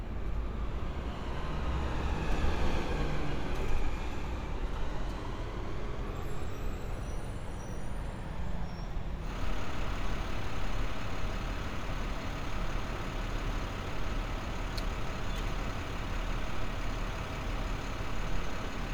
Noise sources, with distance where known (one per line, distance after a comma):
large-sounding engine